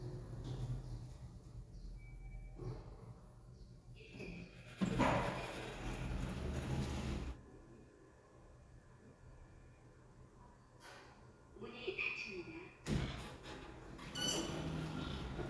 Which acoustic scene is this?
elevator